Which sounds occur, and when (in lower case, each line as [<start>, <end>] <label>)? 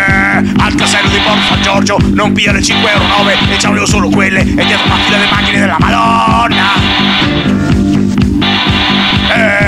[0.00, 0.38] male singing
[0.00, 9.65] music
[0.00, 9.65] music
[0.40, 0.55] breathing
[0.54, 1.95] male singing
[2.00, 2.11] breathing
[2.10, 3.35] male singing
[3.56, 4.42] male singing
[4.40, 4.55] breathing
[4.55, 6.81] male singing
[7.67, 7.77] tick
[7.89, 7.99] tick
[8.14, 8.23] tick
[9.24, 9.65] grunt